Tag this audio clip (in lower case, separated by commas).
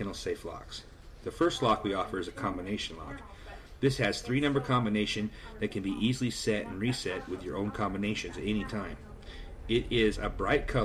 speech